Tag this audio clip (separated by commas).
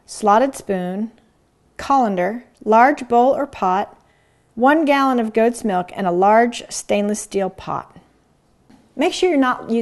Speech